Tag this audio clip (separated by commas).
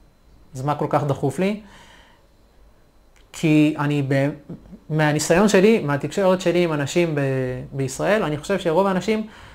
Speech